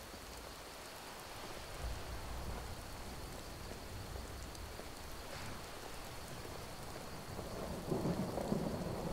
Rain is falling and thunder is booming